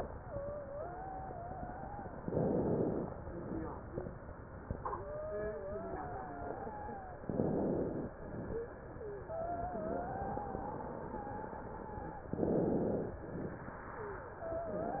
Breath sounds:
Inhalation: 2.18-3.10 s, 7.30-8.12 s, 12.32-13.24 s
Wheeze: 0.04-2.12 s, 4.84-7.22 s, 8.96-9.18 s, 9.22-12.28 s, 13.96-14.28 s, 14.40-15.00 s

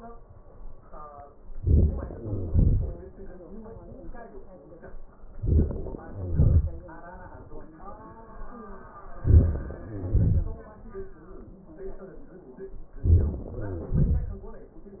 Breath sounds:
Inhalation: 1.50-2.11 s, 5.33-6.05 s, 9.18-9.81 s, 12.97-13.44 s
Exhalation: 2.12-3.13 s, 6.05-6.96 s, 9.84-10.80 s, 13.46-14.73 s
Crackles: 1.49-2.08 s, 2.10-2.50 s, 5.32-6.04 s, 9.16-9.80 s, 9.81-10.12 s, 12.97-13.43 s, 13.45-14.01 s

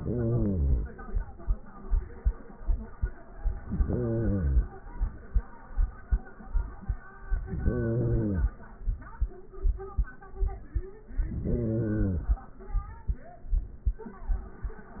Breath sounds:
Inhalation: 0.00-0.97 s, 3.67-4.64 s, 7.33-8.55 s, 11.22-12.45 s

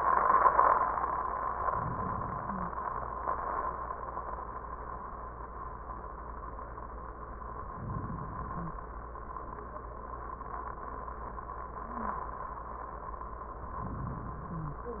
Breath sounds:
Inhalation: 1.50-3.00 s, 7.44-8.94 s, 13.56-15.00 s
Wheeze: 8.52-8.79 s, 14.47-14.95 s

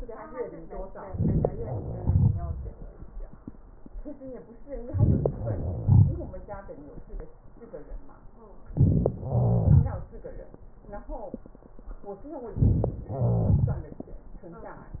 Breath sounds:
Inhalation: 1.02-1.49 s, 4.89-5.28 s, 8.72-9.11 s, 12.60-12.95 s
Exhalation: 2.04-2.68 s, 5.79-6.17 s, 9.32-9.97 s, 13.14-13.87 s
Wheeze: 5.20-6.39 s, 9.12-10.00 s, 13.16-13.95 s

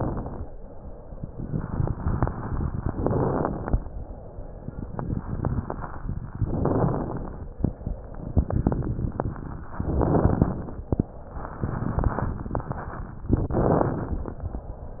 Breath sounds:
Inhalation: 0.00-0.53 s, 2.88-3.83 s, 6.51-7.46 s, 9.85-10.85 s, 13.34-14.35 s
Crackles: 0.00-0.57 s, 2.88-3.83 s, 6.51-7.46 s, 9.85-10.85 s, 13.34-14.35 s

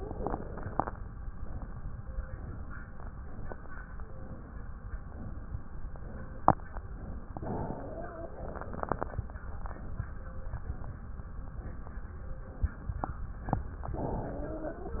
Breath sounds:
Inhalation: 7.30-8.35 s, 13.95-15.00 s
Exhalation: 8.33-9.05 s
Wheeze: 7.61-8.33 s, 13.95-15.00 s

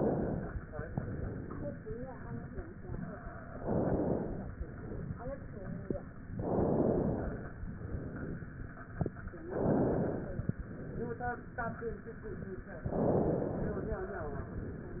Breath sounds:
Inhalation: 0.00-0.58 s, 3.52-4.54 s, 6.31-7.56 s, 9.45-10.49 s, 12.83-14.01 s
Exhalation: 0.70-1.73 s, 4.54-5.59 s, 7.64-8.68 s, 10.58-11.62 s, 14.14-15.00 s

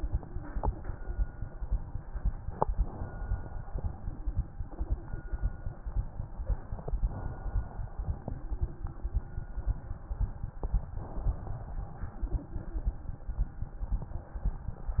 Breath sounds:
Inhalation: 2.75-3.66 s, 6.91-7.81 s, 10.96-11.87 s
Exhalation: 3.75-6.77 s, 7.89-10.90 s, 11.97-15.00 s

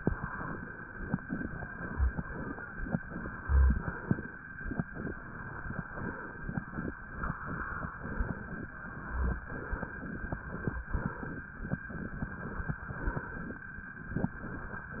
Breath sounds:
Inhalation: 1.23-2.18 s, 3.10-3.90 s, 4.91-5.83 s, 7.98-8.74 s, 9.49-10.41 s, 11.94-12.81 s, 14.18-14.90 s
Exhalation: 2.18-2.95 s, 3.90-4.37 s, 5.91-6.67 s, 8.79-9.39 s, 10.92-11.48 s, 12.85-13.65 s, 14.94-15.00 s

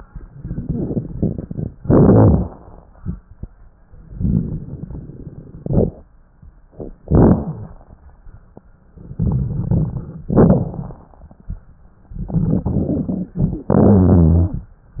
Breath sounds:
Inhalation: 1.80-2.89 s, 5.60-6.00 s, 7.02-7.88 s, 10.32-11.25 s, 13.70-14.63 s
Exhalation: 4.10-5.58 s, 8.99-10.27 s, 12.09-13.68 s
Rhonchi: 13.70-14.63 s
Crackles: 0.23-1.73 s, 1.80-2.89 s, 4.10-5.58 s, 5.60-6.00 s, 7.02-7.88 s, 8.99-10.27 s, 10.32-11.25 s, 12.09-13.68 s

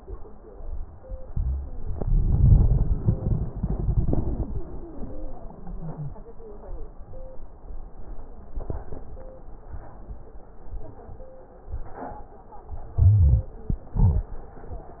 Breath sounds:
Inhalation: 1.26-1.79 s, 12.98-13.52 s
Exhalation: 13.97-14.34 s
Wheeze: 4.51-6.13 s
Crackles: 12.98-13.52 s

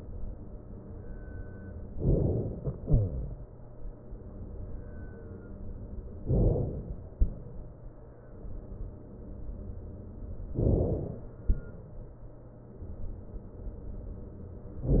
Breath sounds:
Inhalation: 1.94-2.73 s, 6.30-7.22 s, 10.53-11.45 s
Exhalation: 2.73-4.65 s

